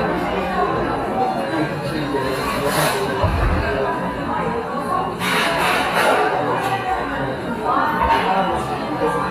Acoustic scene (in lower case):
cafe